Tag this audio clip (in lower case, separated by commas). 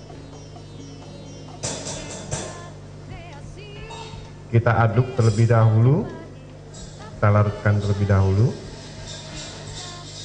music, speech